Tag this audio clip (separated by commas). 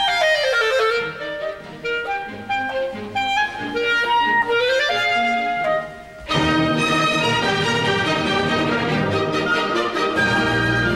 playing clarinet